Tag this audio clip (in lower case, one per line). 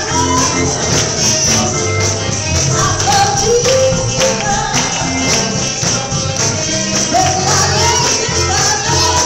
music
female singing